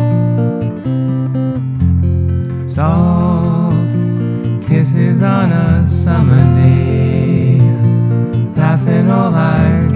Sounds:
guitar, music

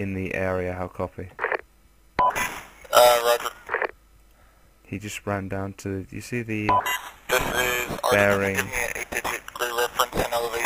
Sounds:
speech, telephone

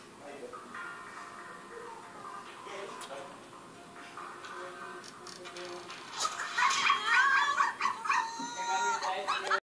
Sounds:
music, speech

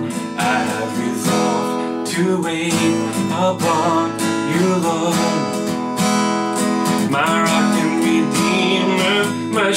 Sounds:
guitar, music, musical instrument

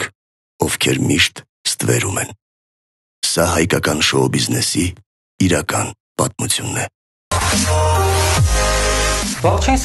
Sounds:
music, pop, speech

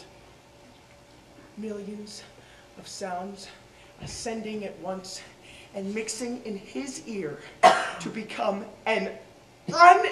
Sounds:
speech

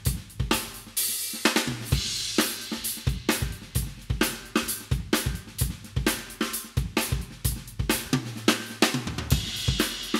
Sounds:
percussion, musical instrument, snare drum, drum, cymbal, hi-hat, drum kit, music, bass drum

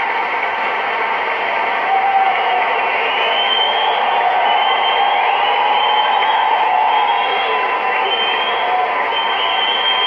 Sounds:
speech

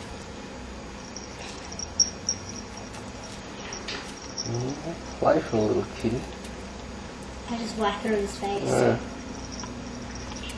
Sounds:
speech

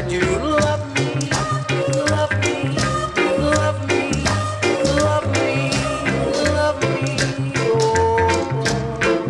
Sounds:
music

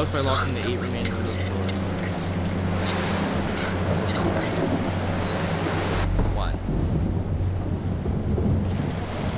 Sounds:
speech

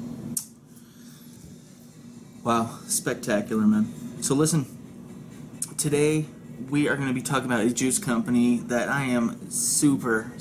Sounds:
speech, music

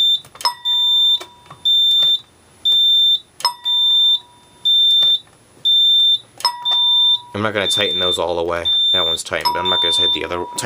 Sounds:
speech, fire alarm

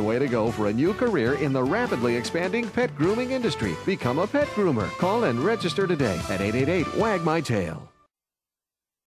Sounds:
music, speech

